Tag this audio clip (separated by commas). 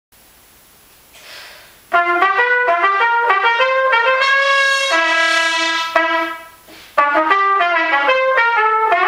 Brass instrument, Trumpet